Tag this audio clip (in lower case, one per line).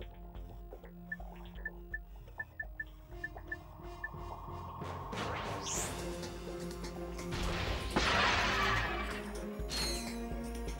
music